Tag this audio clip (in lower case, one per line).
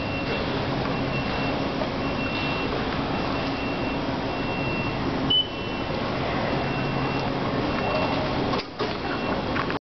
tap